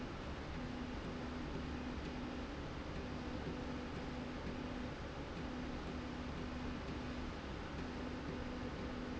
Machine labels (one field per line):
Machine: slide rail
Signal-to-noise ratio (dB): 0 dB